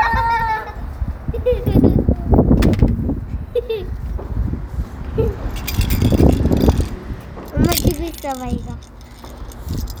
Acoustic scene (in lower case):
residential area